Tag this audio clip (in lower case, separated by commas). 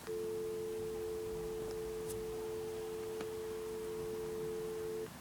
telephone, alarm